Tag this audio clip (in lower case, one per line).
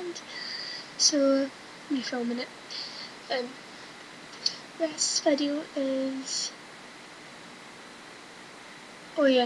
speech